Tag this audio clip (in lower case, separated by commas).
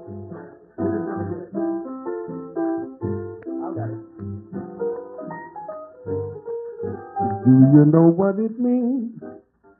music, speech